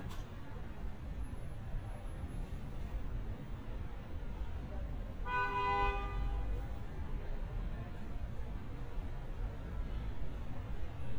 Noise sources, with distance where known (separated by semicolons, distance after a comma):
car horn, near